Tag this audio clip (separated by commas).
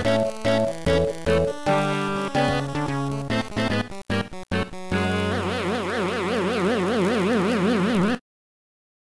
Music